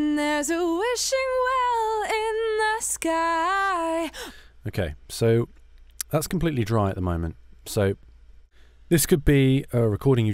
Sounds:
speech

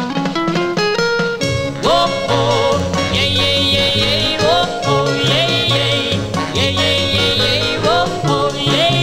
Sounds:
music

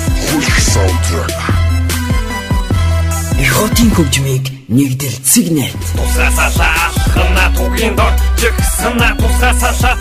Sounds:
music
speech

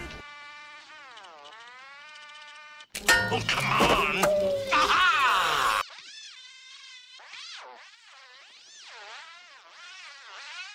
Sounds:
speech

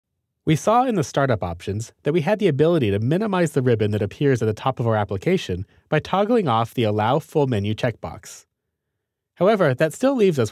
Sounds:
xylophone

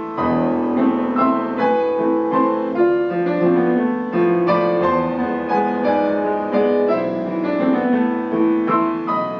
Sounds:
musical instrument
piano
classical music
music

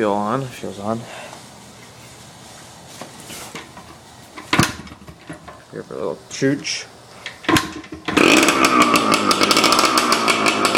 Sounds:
motorcycle
speech
vehicle

